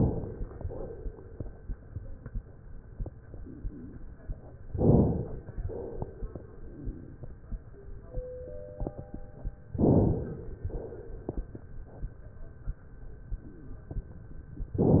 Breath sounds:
Inhalation: 4.74-5.63 s, 9.82-10.70 s
Exhalation: 5.65-6.66 s, 10.68-11.68 s

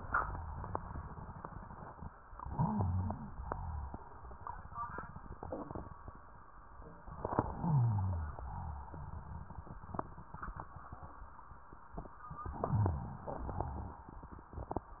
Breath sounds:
Inhalation: 2.37-3.31 s, 7.07-8.37 s, 12.39-13.25 s
Exhalation: 3.29-3.96 s, 8.37-9.04 s, 13.25-14.13 s
Wheeze: 2.37-3.31 s, 7.61-8.37 s
Rhonchi: 3.29-3.96 s, 8.39-8.97 s, 12.63-13.21 s, 13.29-13.99 s

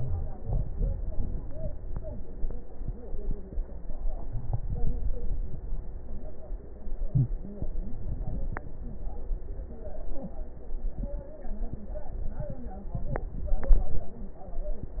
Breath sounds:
No breath sounds were labelled in this clip.

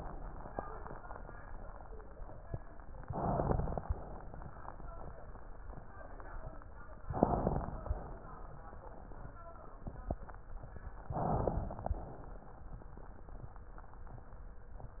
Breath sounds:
Inhalation: 2.98-3.85 s, 7.12-7.99 s, 11.18-12.05 s
Exhalation: 3.89-4.58 s, 7.99-8.61 s, 12.05-12.60 s

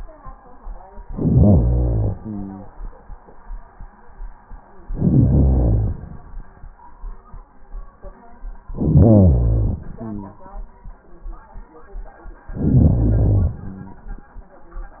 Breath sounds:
Inhalation: 1.03-2.17 s, 4.85-6.25 s, 8.71-9.89 s, 12.48-13.64 s
Exhalation: 2.17-3.19 s, 9.87-11.03 s, 13.62-14.71 s

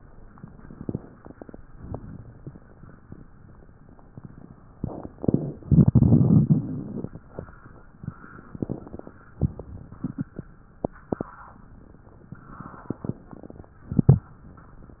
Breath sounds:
Inhalation: 0.69-1.59 s, 8.55-9.35 s, 12.84-13.77 s
Exhalation: 1.58-3.26 s, 9.35-10.46 s

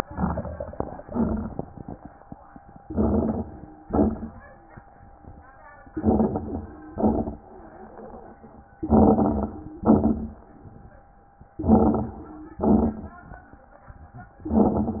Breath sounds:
Inhalation: 0.07-0.91 s, 2.81-3.65 s, 5.90-6.81 s, 8.84-9.75 s, 11.57-12.56 s, 14.48-15.00 s
Exhalation: 1.00-1.84 s, 3.85-4.57 s, 6.91-7.46 s, 9.83-10.47 s, 12.63-13.47 s
Crackles: 0.07-0.91 s, 1.00-1.84 s, 2.81-3.65 s, 3.85-4.57 s, 5.90-6.81 s, 6.91-7.46 s, 8.84-9.75 s, 9.83-10.47 s, 11.57-12.56 s, 12.63-13.47 s, 14.48-15.00 s

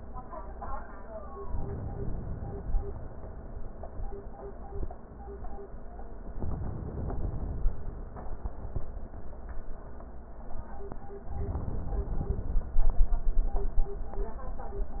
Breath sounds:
Inhalation: 1.43-2.93 s, 6.25-7.75 s, 11.22-12.72 s

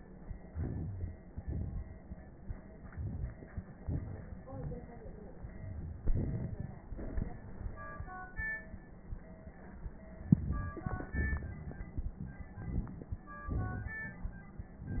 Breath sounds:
Inhalation: 0.42-1.31 s, 2.73-3.63 s, 6.86-7.73 s, 9.94-11.13 s, 12.50-13.45 s
Exhalation: 1.27-2.39 s, 3.63-4.39 s, 5.98-6.88 s, 11.13-12.50 s, 13.45-14.72 s
Wheeze: 0.42-1.31 s, 4.41-5.38 s
Crackles: 1.27-2.39 s, 2.73-3.63 s, 3.65-4.39 s, 5.98-6.86 s, 6.86-7.73 s, 9.94-11.13 s, 11.13-12.50 s, 12.50-13.45 s, 13.45-14.72 s

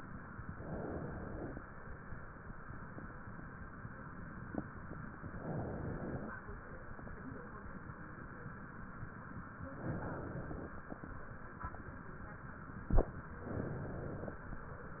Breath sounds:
Inhalation: 0.55-1.63 s, 5.25-6.34 s, 9.69-10.77 s, 13.39-14.47 s

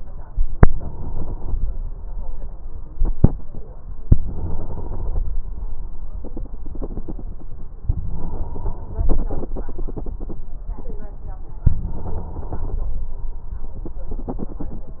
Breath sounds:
Inhalation: 0.65-1.55 s, 4.20-5.30 s, 7.90-9.08 s, 11.75-13.08 s

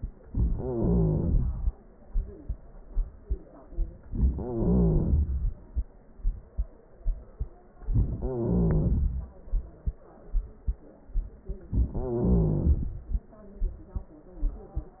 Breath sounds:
Wheeze: 0.55-1.46 s, 4.26-5.18 s, 8.20-8.98 s, 11.95-12.79 s

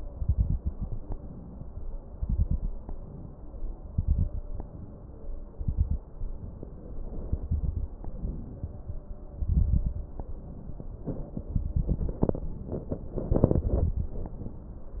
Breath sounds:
Inhalation: 1.14-1.99 s, 2.89-3.74 s, 4.64-5.49 s, 6.21-7.26 s, 8.06-9.01 s, 10.17-11.11 s, 12.39-13.34 s, 14.14-15.00 s
Exhalation: 0.00-1.12 s, 2.13-2.83 s, 3.91-4.62 s, 5.59-6.08 s, 7.32-7.96 s, 9.43-10.07 s, 11.55-12.31 s, 13.36-14.10 s
Crackles: 0.00-1.12 s, 2.13-2.83 s, 3.91-4.62 s, 5.59-6.08 s, 7.32-7.96 s, 9.43-10.07 s, 11.55-12.31 s, 13.36-14.10 s

